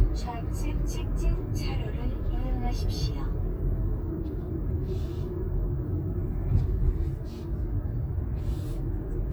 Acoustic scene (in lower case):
car